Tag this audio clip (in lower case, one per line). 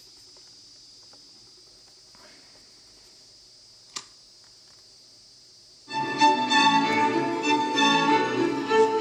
music